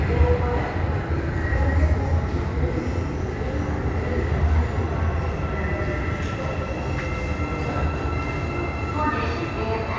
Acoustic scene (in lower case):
subway station